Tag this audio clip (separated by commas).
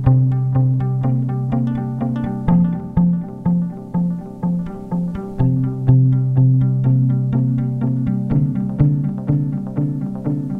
Music